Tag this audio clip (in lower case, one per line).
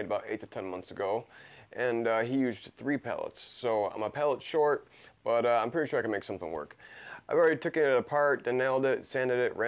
speech